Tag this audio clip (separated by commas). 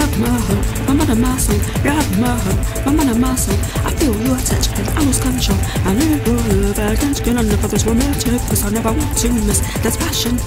Music